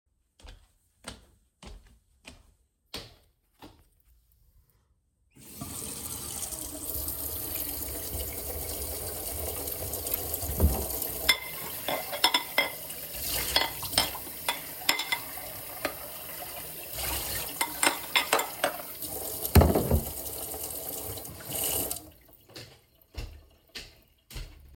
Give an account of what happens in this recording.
I walked into the kitchen and turned on the light. I then turned on the water tap, opened a kitchen cupboard, and took dishes from it. While the water was running I washed the dishes and later turned off the tap and walked away.